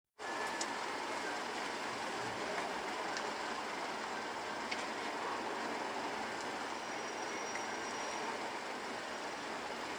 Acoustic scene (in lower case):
street